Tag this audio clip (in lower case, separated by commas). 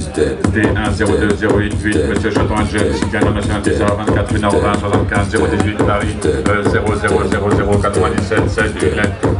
music